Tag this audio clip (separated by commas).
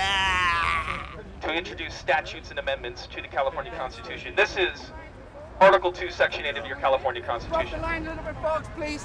Speech